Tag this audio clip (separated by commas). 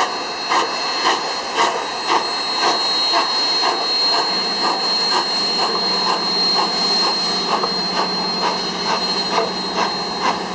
Vehicle, Rail transport, Train, train wagon